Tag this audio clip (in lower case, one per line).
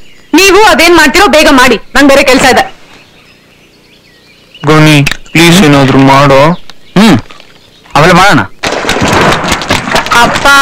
speech